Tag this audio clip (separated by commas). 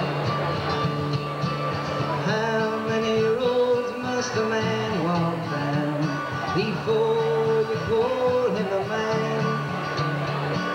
Music